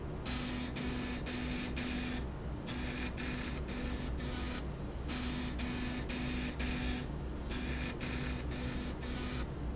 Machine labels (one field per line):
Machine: slide rail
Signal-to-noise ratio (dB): -6 dB